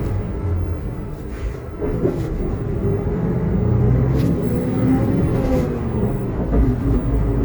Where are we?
on a bus